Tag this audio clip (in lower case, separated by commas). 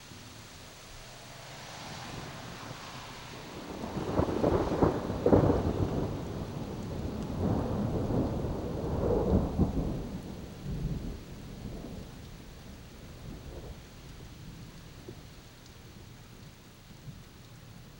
thunder, thunderstorm